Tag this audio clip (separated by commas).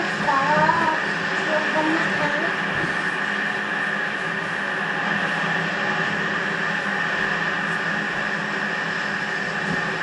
Boat, Speech, Vehicle